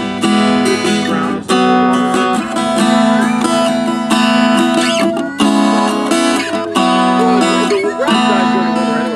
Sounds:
plucked string instrument
speech
musical instrument
guitar
music

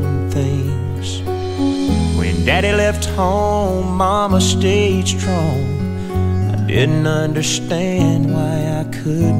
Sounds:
independent music
soul music
music

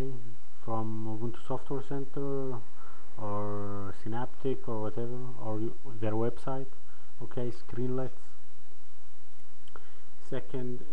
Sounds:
speech

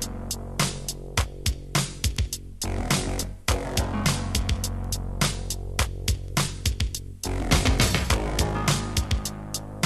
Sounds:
music

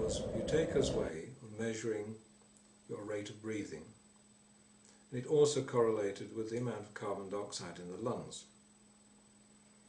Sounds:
speech

